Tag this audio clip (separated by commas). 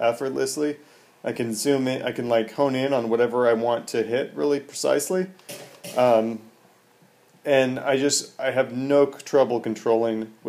Speech